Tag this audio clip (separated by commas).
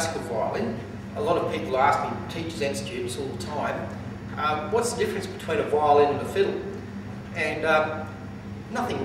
Speech